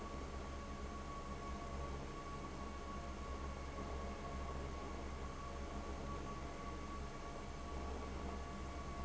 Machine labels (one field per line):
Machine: fan